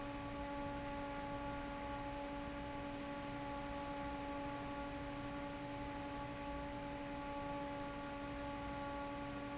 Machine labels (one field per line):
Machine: fan